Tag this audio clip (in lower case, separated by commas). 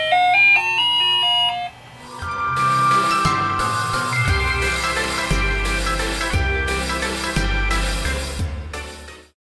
music, sound effect